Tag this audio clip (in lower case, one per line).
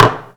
dishes, pots and pans
domestic sounds